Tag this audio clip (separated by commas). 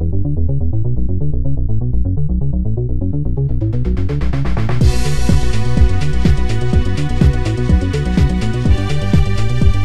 Blues, Music